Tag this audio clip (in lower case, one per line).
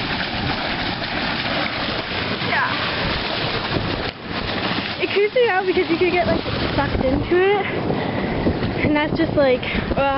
speech